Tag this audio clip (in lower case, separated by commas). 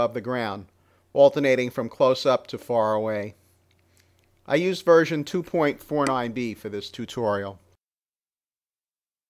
speech